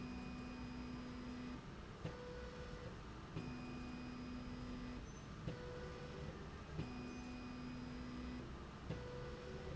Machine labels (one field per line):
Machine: slide rail